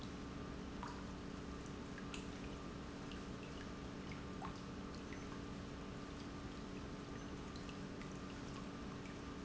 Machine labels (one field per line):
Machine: pump